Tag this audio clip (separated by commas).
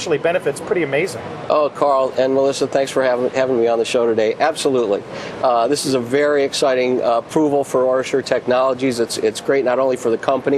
Speech